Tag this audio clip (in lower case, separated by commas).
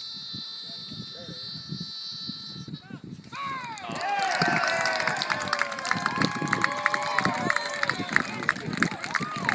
speech, beep